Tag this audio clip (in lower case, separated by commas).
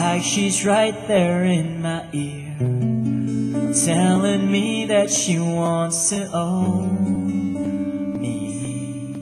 singing, bowed string instrument, plucked string instrument, acoustic guitar, guitar, music, musical instrument